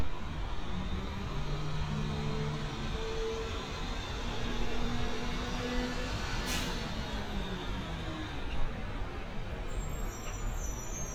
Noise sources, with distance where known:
engine of unclear size, near

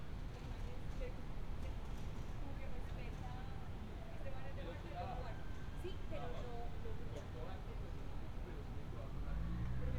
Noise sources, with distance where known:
person or small group talking

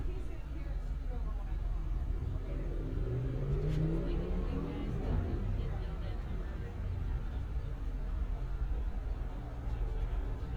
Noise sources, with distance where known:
medium-sounding engine
large-sounding engine
person or small group talking

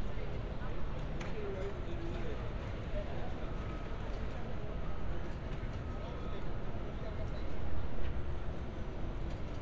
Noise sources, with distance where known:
person or small group talking, near

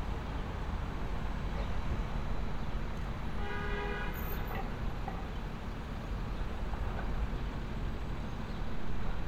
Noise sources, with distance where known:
car horn, far

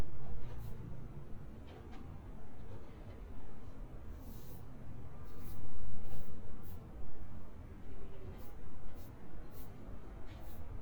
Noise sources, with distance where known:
background noise

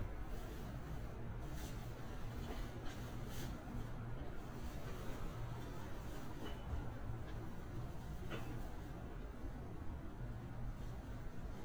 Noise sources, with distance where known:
background noise

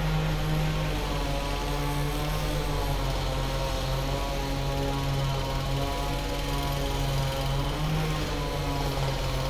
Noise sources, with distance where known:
jackhammer, far
small or medium rotating saw, near

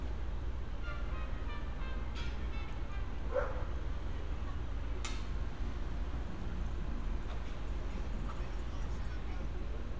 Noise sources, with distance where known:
music from a fixed source
dog barking or whining, far

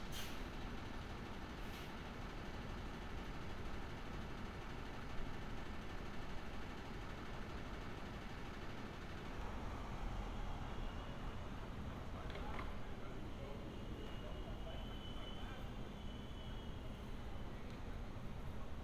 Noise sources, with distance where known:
background noise

